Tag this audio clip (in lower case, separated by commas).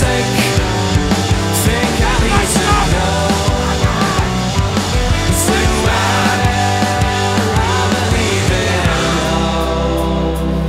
independent music